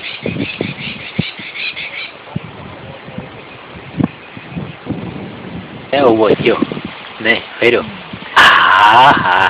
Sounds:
animal, speech

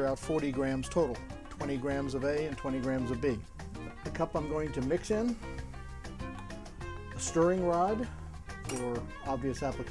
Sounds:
music, speech

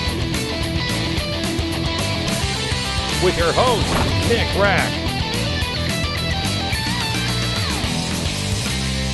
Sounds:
music, speech

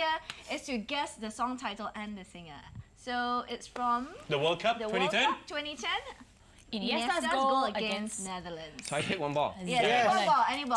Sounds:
speech

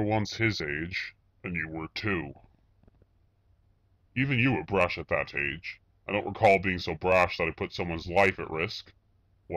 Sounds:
speech

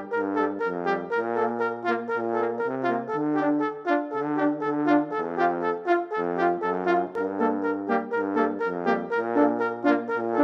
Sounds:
french horn, brass instrument, playing french horn

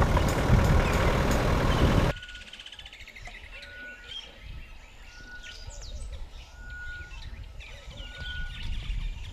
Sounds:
bird, bird vocalization, tweet

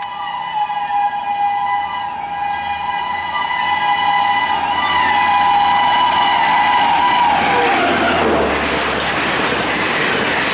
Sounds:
rail transport, vehicle, train whistle, train

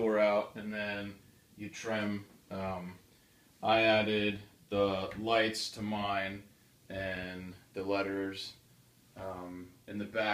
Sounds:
speech

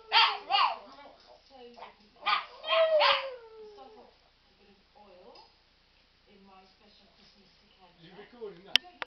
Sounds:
speech

